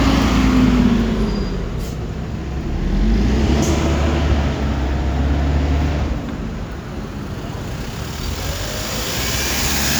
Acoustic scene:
street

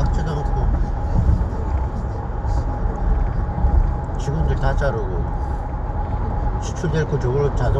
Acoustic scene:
car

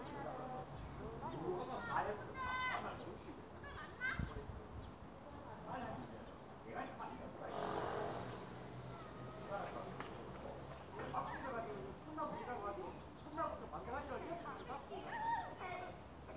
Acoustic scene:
residential area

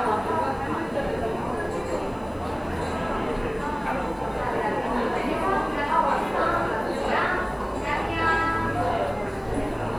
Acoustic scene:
cafe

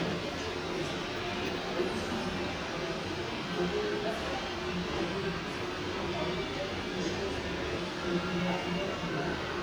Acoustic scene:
elevator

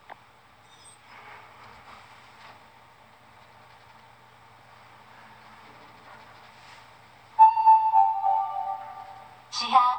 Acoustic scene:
elevator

